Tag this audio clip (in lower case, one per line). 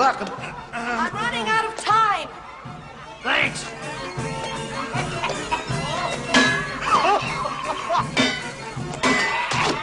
music
speech